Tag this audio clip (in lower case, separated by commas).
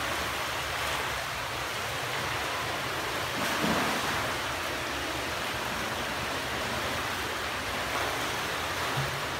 swimming